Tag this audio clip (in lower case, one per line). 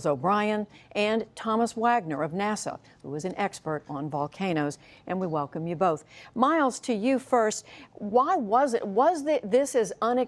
speech